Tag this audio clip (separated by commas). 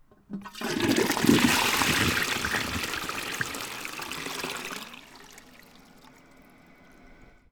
Water, Toilet flush, Domestic sounds